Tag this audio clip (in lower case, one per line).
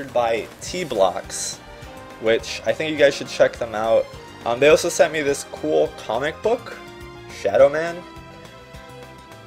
music
speech